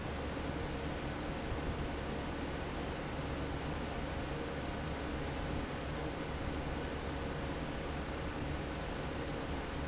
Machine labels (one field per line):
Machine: fan